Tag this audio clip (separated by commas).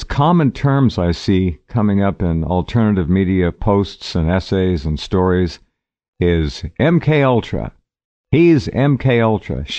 Speech, Speech synthesizer